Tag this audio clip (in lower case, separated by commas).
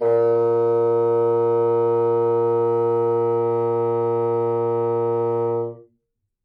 musical instrument, wind instrument, music